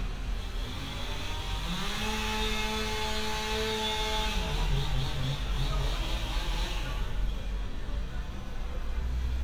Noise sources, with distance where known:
small-sounding engine, near

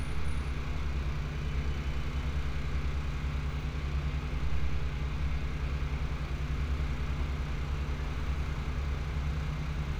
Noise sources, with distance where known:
medium-sounding engine

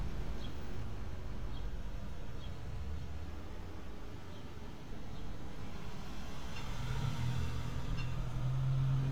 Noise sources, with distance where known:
engine of unclear size

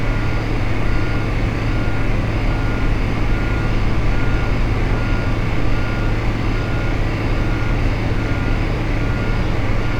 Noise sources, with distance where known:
reverse beeper, near

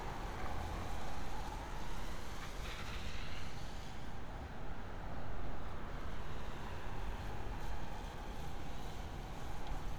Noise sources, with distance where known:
background noise

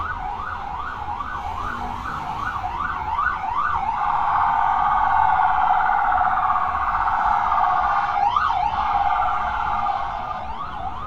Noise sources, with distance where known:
siren, near

